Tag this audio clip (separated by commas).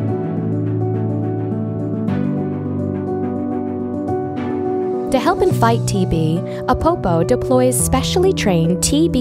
Speech, Music